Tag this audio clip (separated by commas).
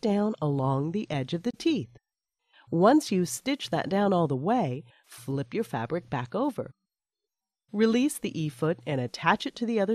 Speech